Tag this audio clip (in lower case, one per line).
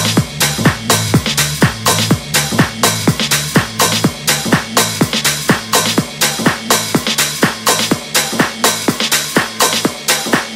music
musical instrument